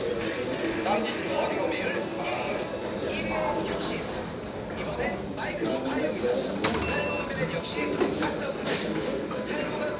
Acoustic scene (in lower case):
crowded indoor space